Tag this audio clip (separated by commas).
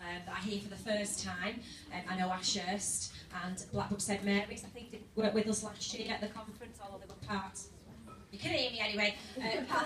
Speech